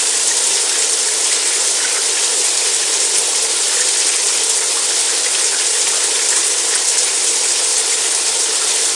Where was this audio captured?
in a restroom